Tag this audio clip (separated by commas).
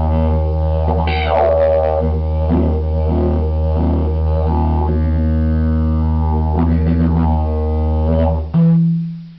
Music